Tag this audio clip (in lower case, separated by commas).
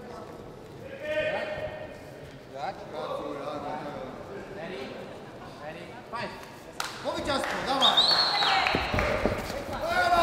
speech